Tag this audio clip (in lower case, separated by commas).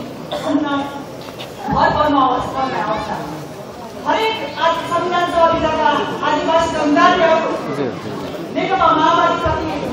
woman speaking, speech, kid speaking, monologue